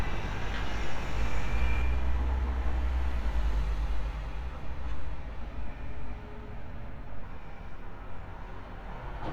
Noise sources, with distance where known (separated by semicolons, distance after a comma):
engine of unclear size